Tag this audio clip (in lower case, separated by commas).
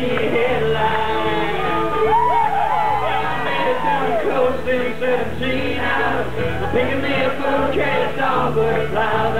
music